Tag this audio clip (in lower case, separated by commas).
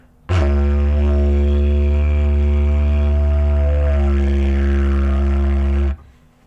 music, musical instrument